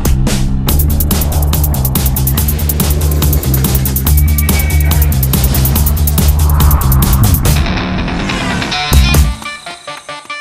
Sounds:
Angry music, Music

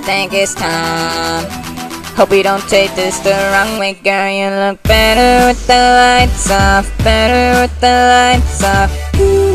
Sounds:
Music

